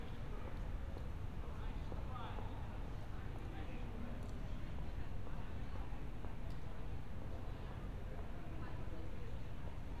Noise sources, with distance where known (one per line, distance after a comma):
person or small group talking